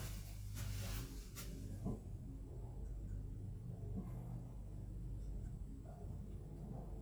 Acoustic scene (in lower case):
elevator